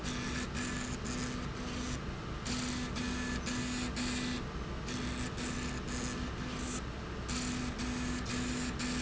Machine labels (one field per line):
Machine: slide rail